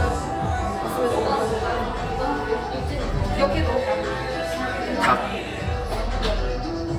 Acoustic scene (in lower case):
cafe